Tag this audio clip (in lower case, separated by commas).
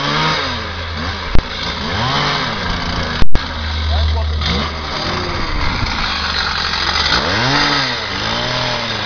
speech, chainsawing trees, chainsaw